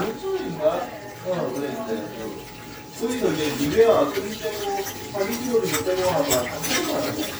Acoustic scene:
kitchen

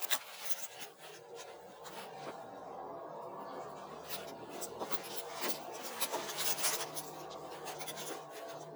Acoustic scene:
elevator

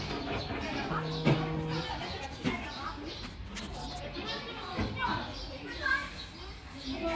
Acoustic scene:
park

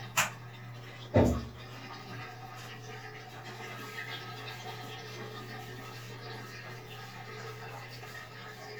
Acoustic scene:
restroom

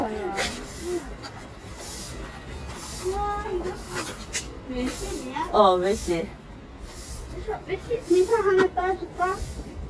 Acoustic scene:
residential area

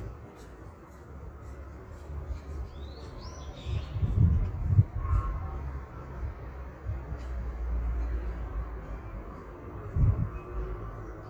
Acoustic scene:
park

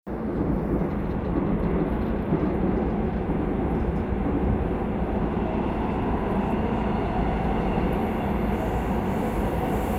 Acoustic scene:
subway train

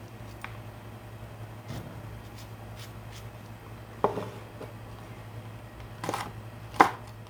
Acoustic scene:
kitchen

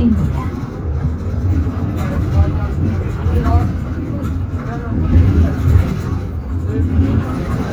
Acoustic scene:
bus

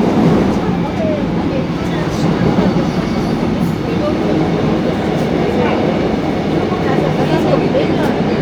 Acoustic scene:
subway train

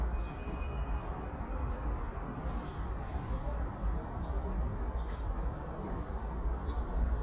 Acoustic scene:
subway station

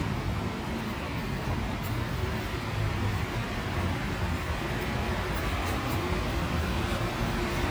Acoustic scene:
street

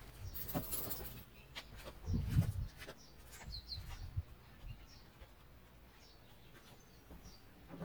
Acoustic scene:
park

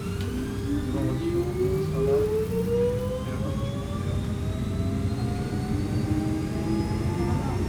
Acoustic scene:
subway train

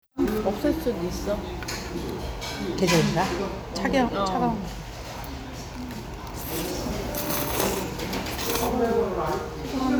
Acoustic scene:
restaurant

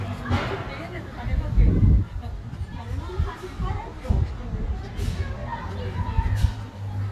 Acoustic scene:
residential area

